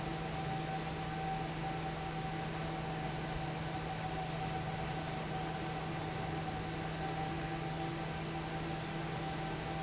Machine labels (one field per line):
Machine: fan